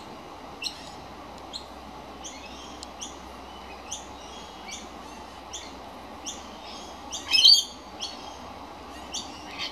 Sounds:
magpie calling

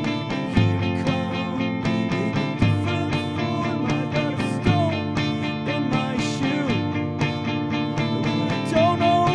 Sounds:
music

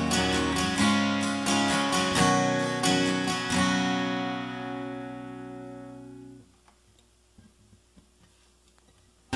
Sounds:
music

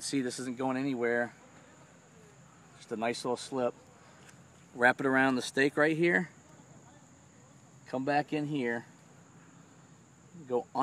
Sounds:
outside, rural or natural, speech

